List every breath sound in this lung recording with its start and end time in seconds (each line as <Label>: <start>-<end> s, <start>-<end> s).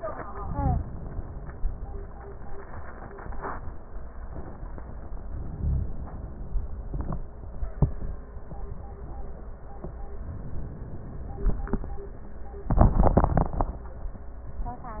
Inhalation: 5.33-6.58 s